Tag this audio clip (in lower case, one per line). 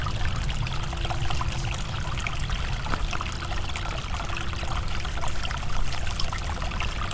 water
stream